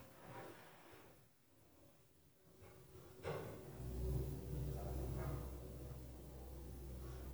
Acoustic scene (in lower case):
elevator